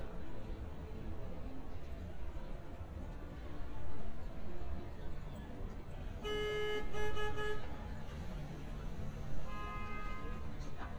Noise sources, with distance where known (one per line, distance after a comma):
car horn, near